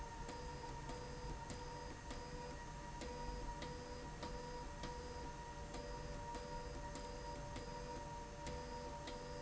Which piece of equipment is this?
slide rail